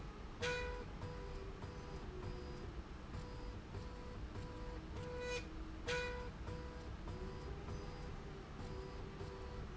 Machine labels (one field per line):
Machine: slide rail